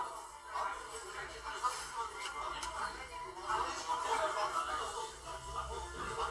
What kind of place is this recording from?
crowded indoor space